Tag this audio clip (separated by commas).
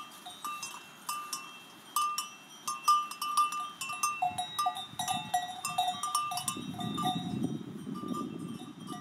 cattle